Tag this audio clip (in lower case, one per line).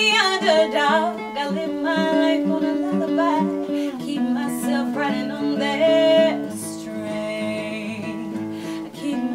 music